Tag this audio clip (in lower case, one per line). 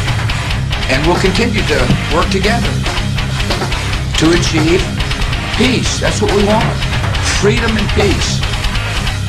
music
speech